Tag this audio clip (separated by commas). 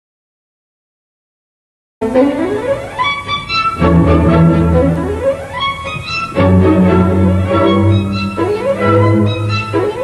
Violin, Musical instrument, Music, playing violin